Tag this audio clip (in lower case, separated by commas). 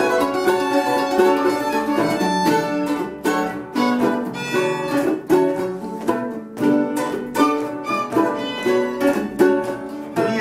plucked string instrument, bowed string instrument, fiddle, musical instrument, music, mandolin, guitar